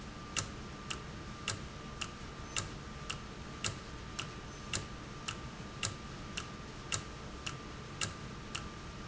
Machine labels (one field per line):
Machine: valve